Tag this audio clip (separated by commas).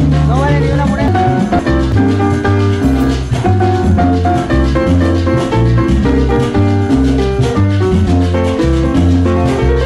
Salsa music, Music